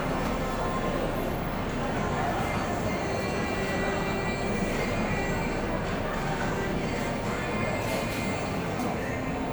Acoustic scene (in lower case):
cafe